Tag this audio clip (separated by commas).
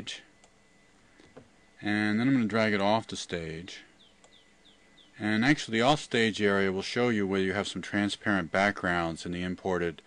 Bird, Coo